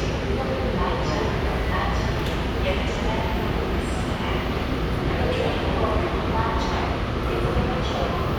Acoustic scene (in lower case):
subway station